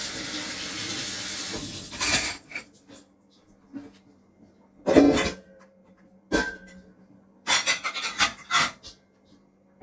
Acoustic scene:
kitchen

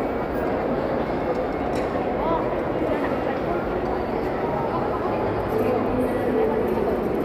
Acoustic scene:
crowded indoor space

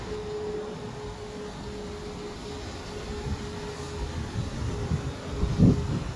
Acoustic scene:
street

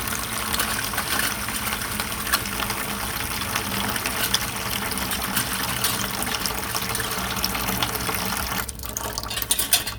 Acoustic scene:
kitchen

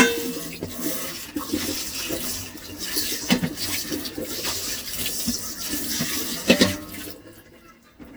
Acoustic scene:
kitchen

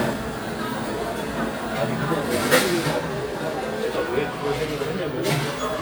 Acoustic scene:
cafe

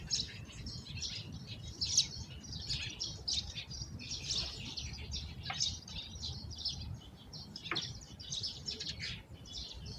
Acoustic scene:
park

